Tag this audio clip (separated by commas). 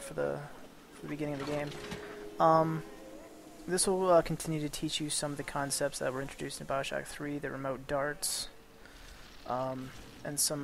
Speech